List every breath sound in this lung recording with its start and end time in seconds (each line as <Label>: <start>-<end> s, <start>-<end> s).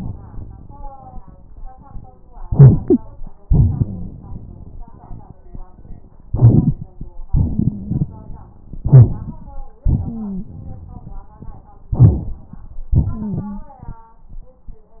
Inhalation: 2.45-3.32 s, 6.30-7.08 s, 8.82-9.62 s, 11.96-12.89 s
Exhalation: 3.47-5.36 s, 7.30-8.54 s, 9.86-11.24 s, 12.96-14.03 s
Wheeze: 7.30-8.06 s, 10.02-10.44 s, 13.10-13.61 s
Rhonchi: 2.56-2.72 s, 8.89-9.06 s